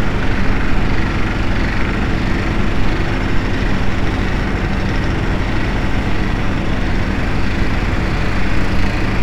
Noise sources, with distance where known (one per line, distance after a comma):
jackhammer, far